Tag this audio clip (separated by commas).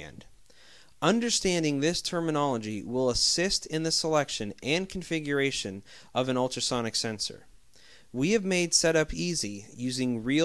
Speech